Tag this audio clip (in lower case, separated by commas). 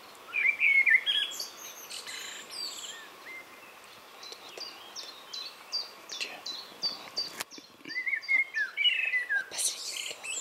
bird chirping, environmental noise, chirp, speech, outside, rural or natural